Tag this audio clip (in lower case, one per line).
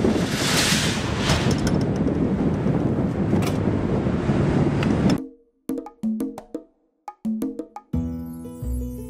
wood block